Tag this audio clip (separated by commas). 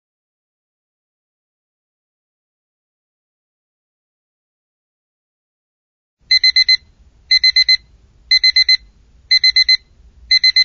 alarm clock ringing